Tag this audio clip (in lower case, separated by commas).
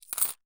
coin (dropping), domestic sounds